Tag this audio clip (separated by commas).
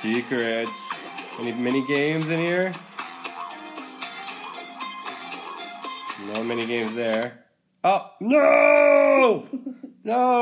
Bird